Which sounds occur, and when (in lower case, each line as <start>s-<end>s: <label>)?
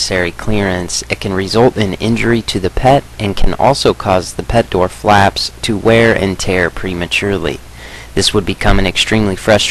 0.0s-9.7s: background noise
0.0s-7.6s: man speaking
8.1s-9.7s: man speaking